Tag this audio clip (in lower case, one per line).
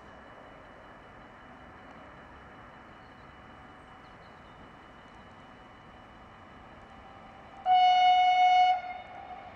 vehicle